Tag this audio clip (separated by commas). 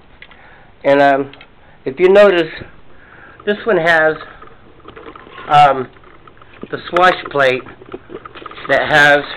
Speech